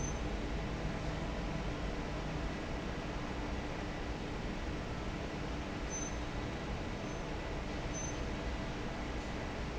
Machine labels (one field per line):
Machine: fan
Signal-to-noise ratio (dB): -6 dB